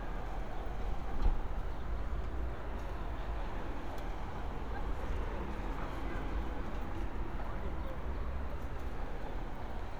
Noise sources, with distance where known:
large crowd, far

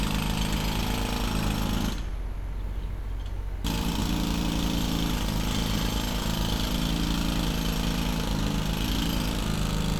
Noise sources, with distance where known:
unidentified impact machinery, far

